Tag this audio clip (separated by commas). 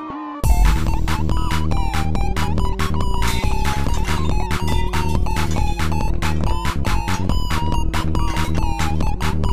Music